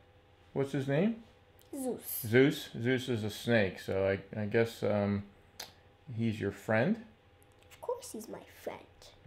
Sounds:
inside a small room, speech

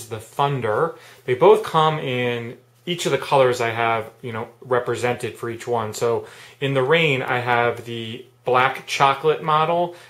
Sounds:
speech

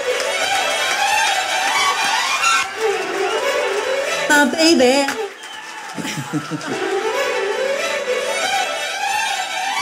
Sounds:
speech, music

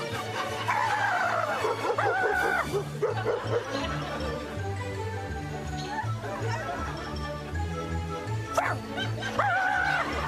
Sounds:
laughter, music, bark

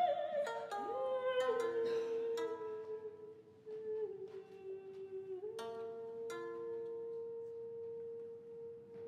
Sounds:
traditional music, music, singing

